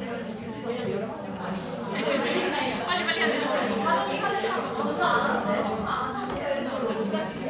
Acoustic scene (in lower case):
crowded indoor space